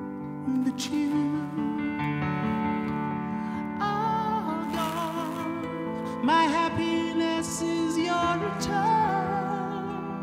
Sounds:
Music

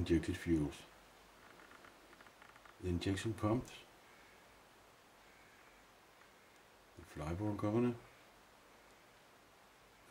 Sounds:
Speech

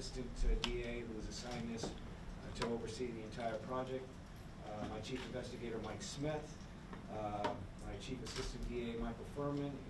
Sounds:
Speech

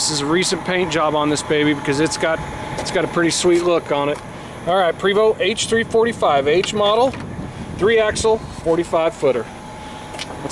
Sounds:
Speech, Bus, Vehicle

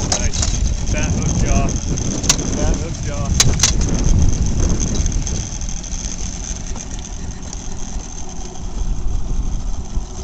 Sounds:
Speech

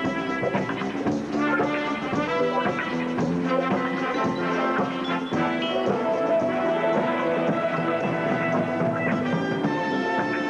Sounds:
Music, Orchestra

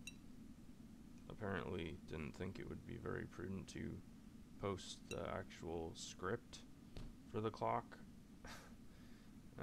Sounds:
Speech

